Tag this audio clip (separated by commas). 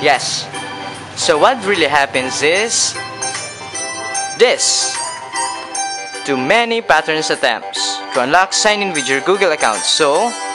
Speech, Music